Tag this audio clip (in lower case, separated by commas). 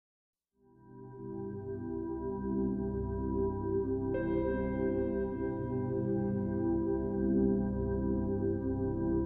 music, new-age music